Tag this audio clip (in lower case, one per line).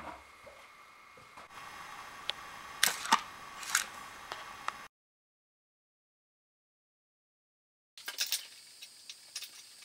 power tool
tools